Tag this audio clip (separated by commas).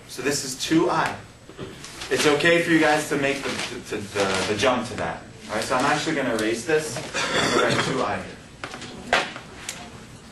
Speech, inside a small room